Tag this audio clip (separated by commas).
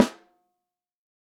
Percussion, Snare drum, Music, Musical instrument, Drum